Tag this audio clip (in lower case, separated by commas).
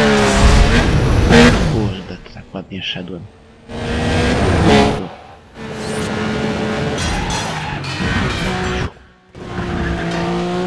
speech